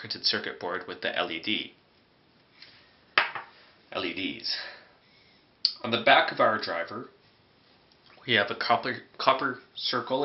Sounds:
speech

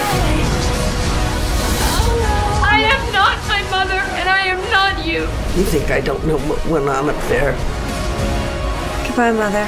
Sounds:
speech, music

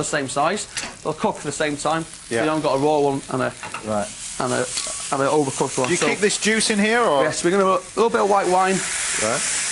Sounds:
sizzle, frying (food)

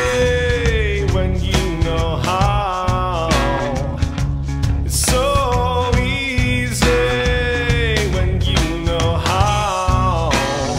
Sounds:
music

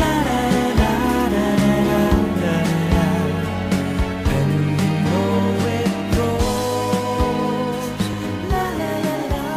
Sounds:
singing, pop music, music

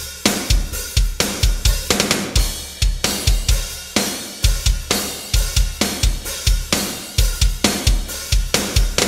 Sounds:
music

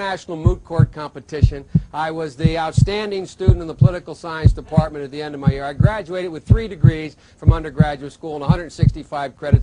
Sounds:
heartbeat, speech

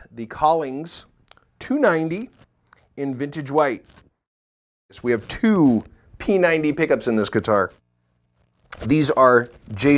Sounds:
speech

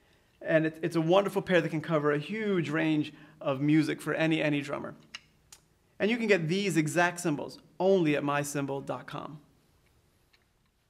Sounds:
speech

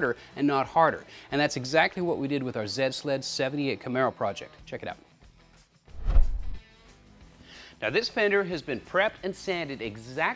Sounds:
speech

